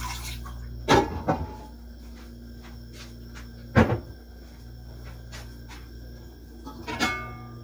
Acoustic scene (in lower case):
kitchen